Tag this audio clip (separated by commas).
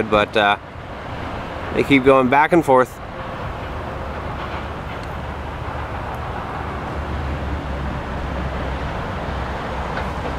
Field recording, Speech